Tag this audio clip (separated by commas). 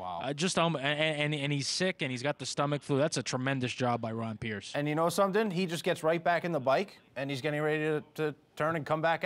Speech